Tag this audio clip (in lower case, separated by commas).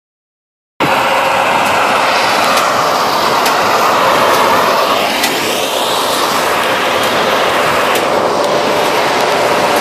vehicle, outside, rural or natural